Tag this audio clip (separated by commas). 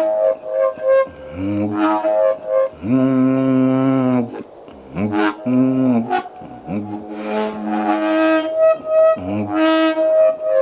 woodwind instrument, Shofar